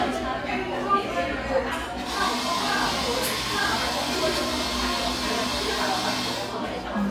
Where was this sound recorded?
in a cafe